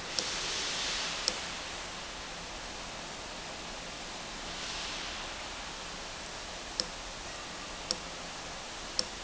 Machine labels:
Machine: valve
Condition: abnormal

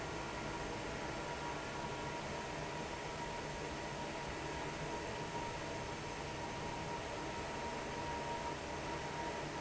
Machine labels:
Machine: fan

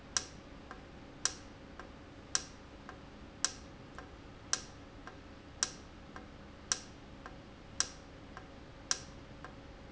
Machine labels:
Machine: valve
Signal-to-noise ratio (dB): 6 dB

